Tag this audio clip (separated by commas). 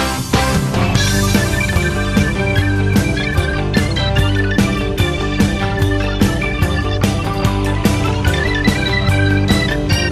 Music